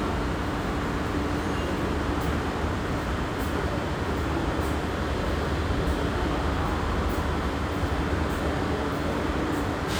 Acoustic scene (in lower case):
subway station